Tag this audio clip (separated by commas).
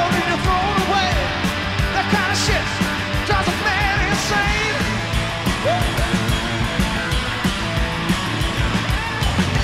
Music